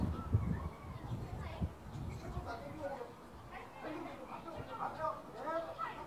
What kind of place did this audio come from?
residential area